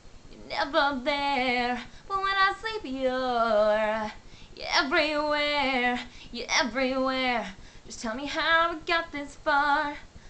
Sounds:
female singing

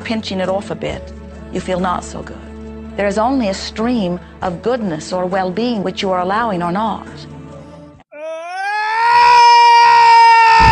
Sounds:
speech, music

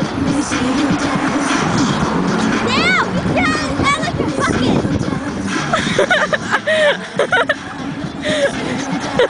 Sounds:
music, speech

